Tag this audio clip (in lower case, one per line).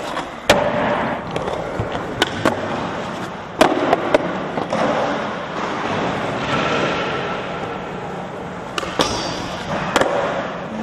skateboard
skateboarding